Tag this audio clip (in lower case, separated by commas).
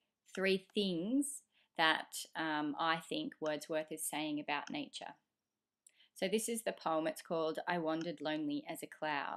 speech